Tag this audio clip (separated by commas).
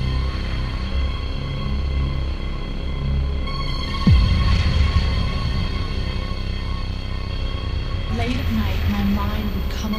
Speech, Electronic music, Scary music, Music